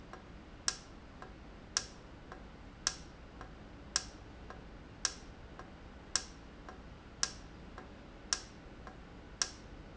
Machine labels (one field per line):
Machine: valve